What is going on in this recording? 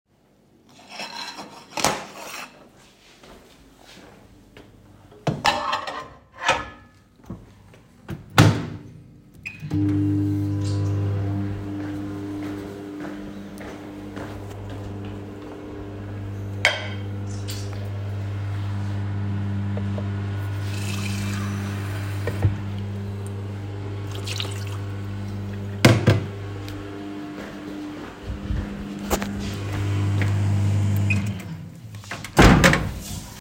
I take a plate from the cupboard and place it on the counter. I start the microwave to heat food. While waiting I fill a cup with water from the tap.